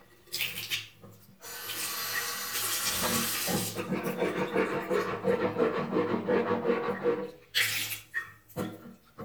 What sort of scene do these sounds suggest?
restroom